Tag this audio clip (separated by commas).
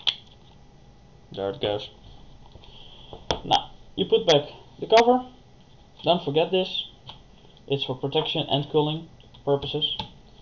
inside a small room, Speech